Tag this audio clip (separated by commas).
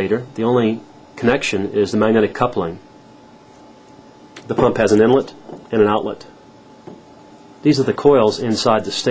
Speech